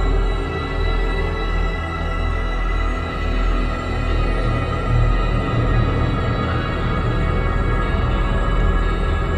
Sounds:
soundtrack music, music

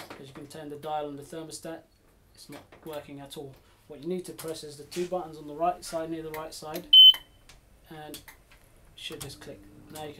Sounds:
speech

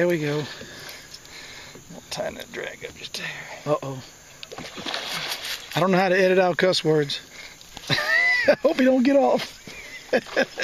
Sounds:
speech, outside, rural or natural, slosh

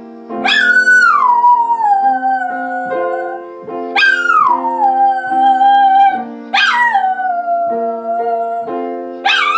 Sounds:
dog howling

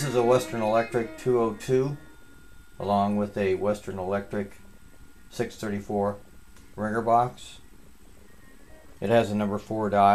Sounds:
music, speech

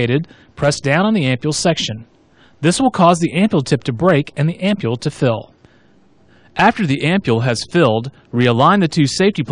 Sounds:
speech

